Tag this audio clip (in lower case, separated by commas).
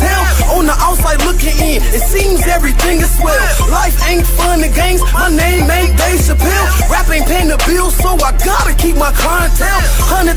hip hop music, music